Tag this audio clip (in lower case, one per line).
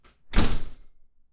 door
slam
home sounds